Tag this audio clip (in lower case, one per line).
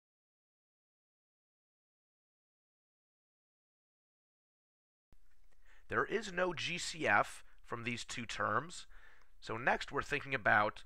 speech